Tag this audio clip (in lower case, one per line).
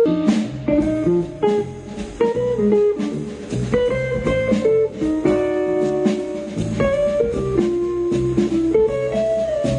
jazz
guitar
music
drum
drum kit
musical instrument
plucked string instrument